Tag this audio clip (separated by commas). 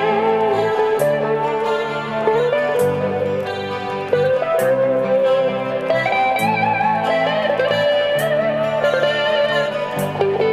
Rock music, Music